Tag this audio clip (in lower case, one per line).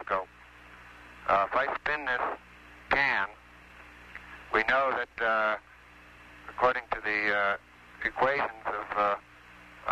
speech